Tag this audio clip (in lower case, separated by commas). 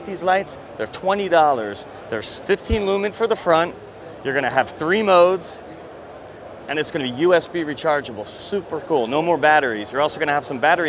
speech